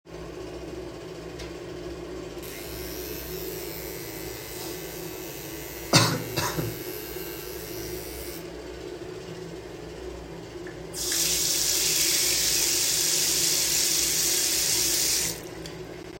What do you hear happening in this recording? I was in the bathroom. I turned on my shaving device and started shaving, I coughed while doing it. I turned on the water to wash.